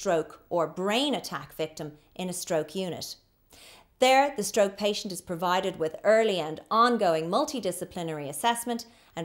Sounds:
speech

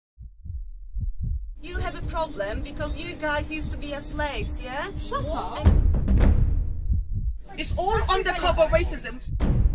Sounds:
speech, heart sounds, music

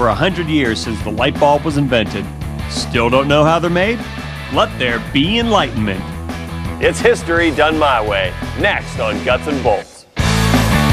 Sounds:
music, speech

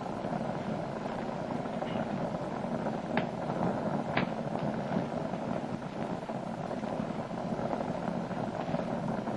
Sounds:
inside a small room

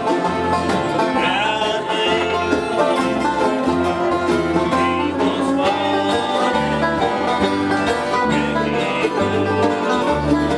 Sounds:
music, country

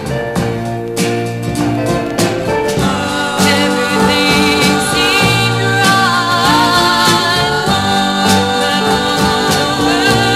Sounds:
music, jazz, swing music

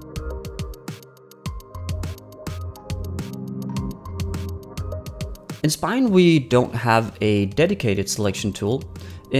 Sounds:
speech, music

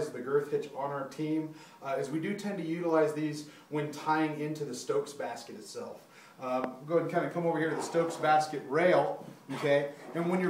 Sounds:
speech

